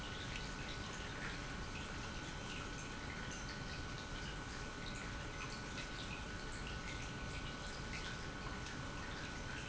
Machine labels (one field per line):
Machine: pump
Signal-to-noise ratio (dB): 6 dB